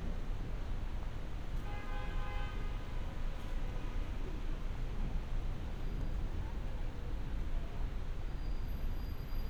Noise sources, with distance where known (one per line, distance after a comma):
unidentified alert signal, near